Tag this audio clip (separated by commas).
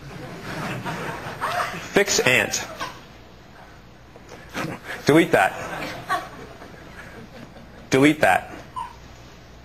Speech, Male speech